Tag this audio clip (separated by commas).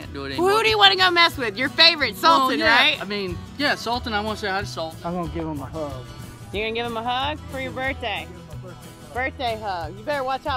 crocodiles hissing